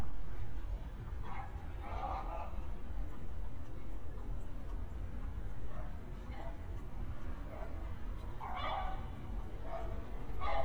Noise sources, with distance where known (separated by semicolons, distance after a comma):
dog barking or whining, far